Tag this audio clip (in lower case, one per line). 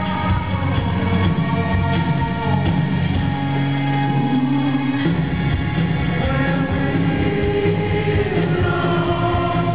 music